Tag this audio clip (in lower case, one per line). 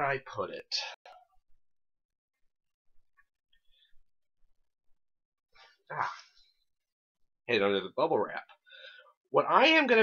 speech